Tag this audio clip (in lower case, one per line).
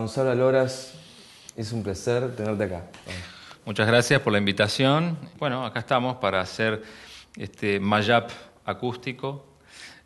speech